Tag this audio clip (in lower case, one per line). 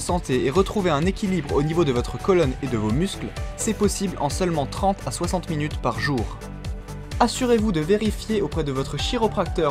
speech
music